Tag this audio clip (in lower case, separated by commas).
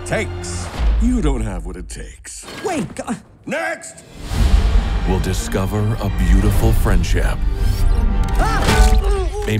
music, speech